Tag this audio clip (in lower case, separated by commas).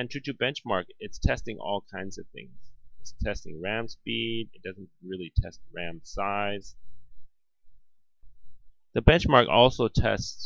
inside a small room, speech